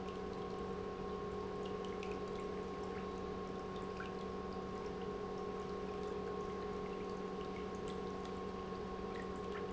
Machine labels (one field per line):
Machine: pump